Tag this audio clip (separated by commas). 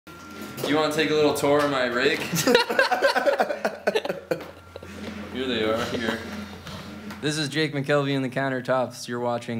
Laughter, Speech